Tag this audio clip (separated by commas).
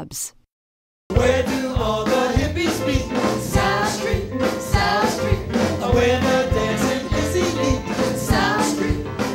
Pop music, Music